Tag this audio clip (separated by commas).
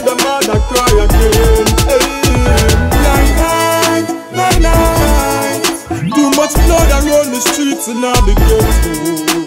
Music